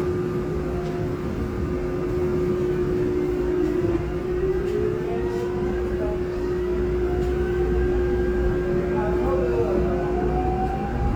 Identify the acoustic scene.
subway train